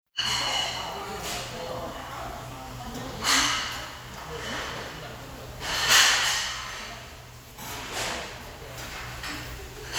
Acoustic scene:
restaurant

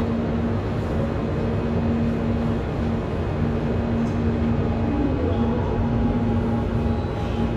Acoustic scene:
subway station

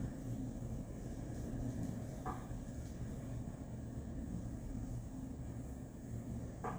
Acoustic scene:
elevator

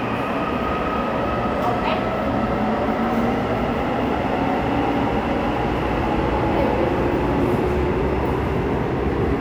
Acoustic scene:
subway station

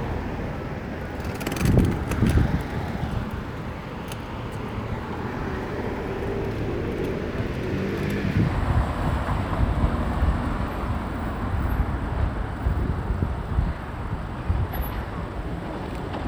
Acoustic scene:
street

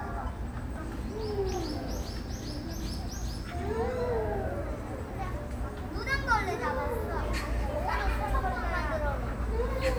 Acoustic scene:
park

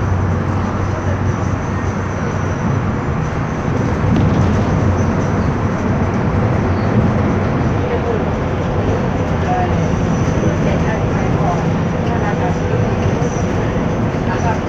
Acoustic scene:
bus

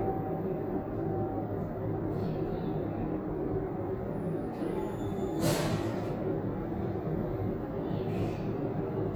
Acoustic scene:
elevator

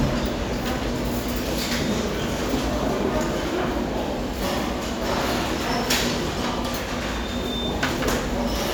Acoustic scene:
restaurant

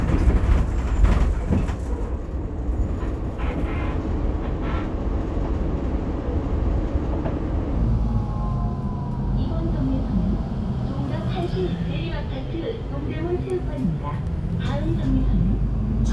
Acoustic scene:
bus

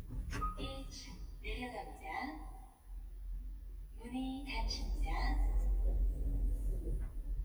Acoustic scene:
elevator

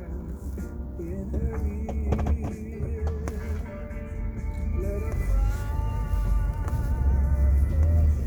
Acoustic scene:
car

